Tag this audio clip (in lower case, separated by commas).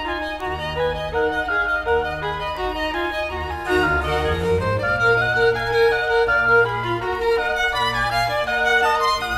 fiddle, music